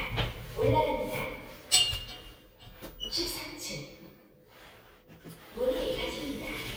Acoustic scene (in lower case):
elevator